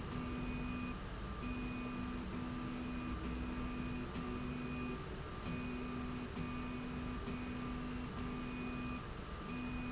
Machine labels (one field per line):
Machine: slide rail